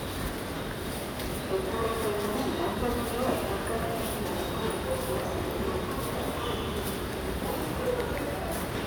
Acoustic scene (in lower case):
subway station